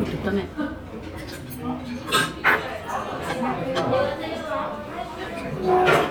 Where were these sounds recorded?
in a restaurant